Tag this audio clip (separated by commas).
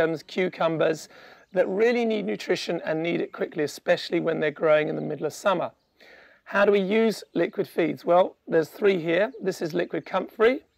Speech